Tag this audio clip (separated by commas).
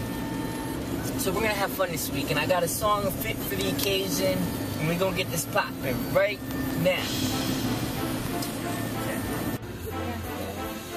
Speech, Vehicle, Music